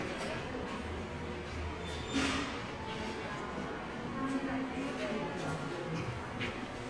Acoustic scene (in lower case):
subway station